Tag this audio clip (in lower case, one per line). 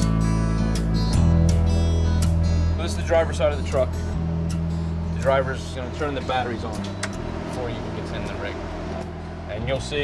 vehicle
music
truck
speech